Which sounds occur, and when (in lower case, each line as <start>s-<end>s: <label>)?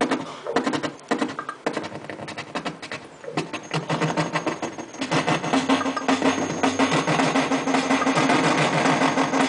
0.0s-9.4s: electronic tuner
0.0s-9.4s: music